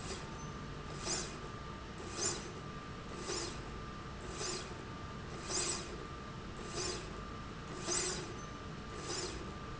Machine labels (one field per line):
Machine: slide rail